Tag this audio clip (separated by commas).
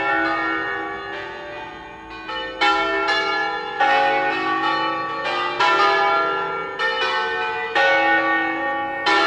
church bell ringing, Church bell